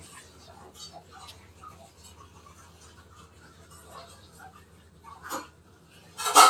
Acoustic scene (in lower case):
kitchen